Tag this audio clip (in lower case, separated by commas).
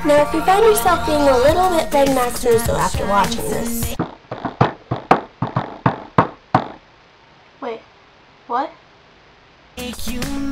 inside a small room, music, speech